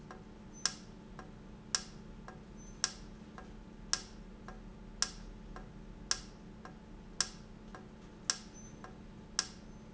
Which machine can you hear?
valve